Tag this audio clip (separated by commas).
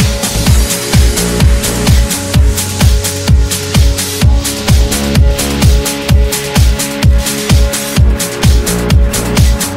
Music